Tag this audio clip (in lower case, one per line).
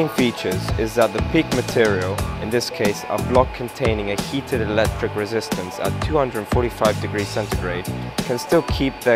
music
speech